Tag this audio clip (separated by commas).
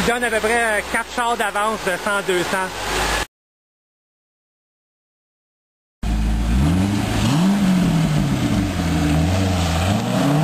Speech